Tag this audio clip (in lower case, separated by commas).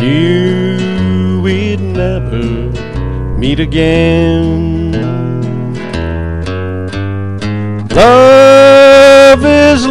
music